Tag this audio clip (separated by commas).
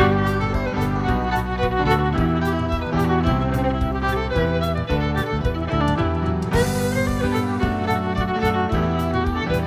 Music, slide guitar